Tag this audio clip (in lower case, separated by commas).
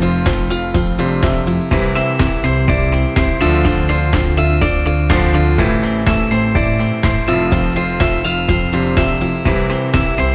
music